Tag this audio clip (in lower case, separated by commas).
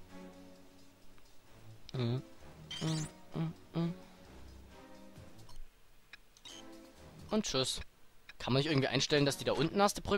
music, speech